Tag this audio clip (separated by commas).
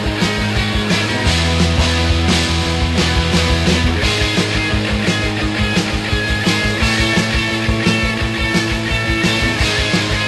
Music